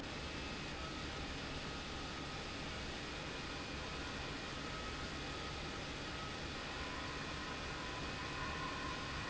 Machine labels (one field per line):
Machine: pump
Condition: abnormal